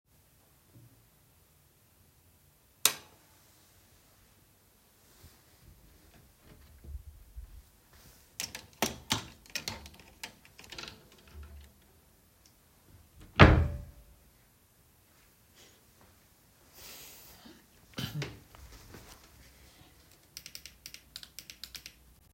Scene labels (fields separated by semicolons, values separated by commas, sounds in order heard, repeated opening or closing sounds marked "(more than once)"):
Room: bedroom; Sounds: light switch, wardrobe or drawer (more than once), door